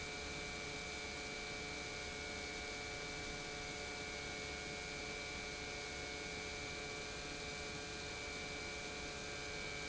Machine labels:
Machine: pump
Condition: normal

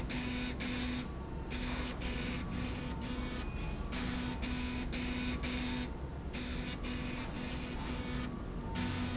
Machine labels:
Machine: slide rail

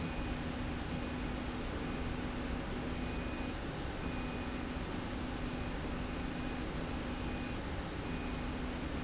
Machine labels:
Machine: slide rail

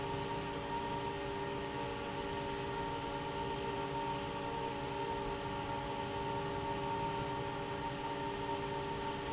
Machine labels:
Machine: fan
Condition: normal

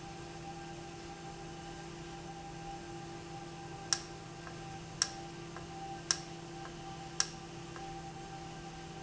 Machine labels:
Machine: valve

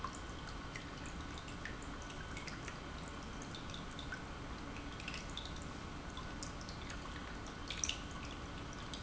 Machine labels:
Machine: pump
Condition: normal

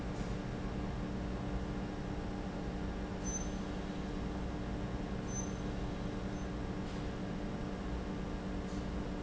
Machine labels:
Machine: pump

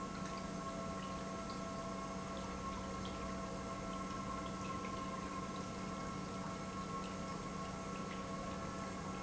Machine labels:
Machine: pump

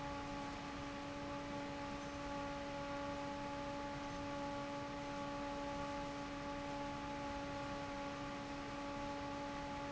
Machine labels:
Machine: fan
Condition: normal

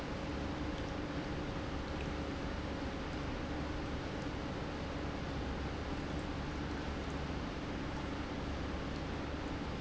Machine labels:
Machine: pump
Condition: normal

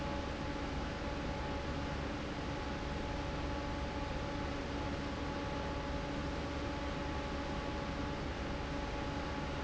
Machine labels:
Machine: fan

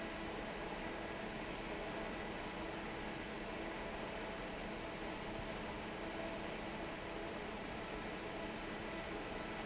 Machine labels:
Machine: fan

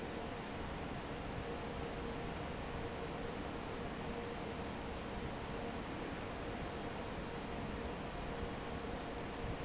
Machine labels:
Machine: fan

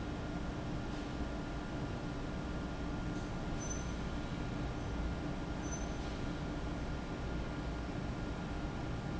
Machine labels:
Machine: fan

